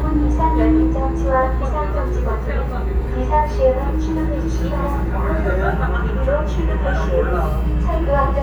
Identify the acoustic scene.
subway train